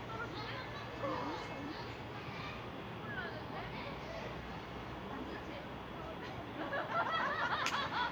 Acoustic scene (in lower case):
residential area